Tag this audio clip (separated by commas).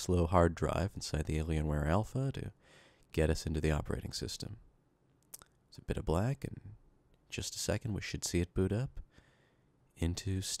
Speech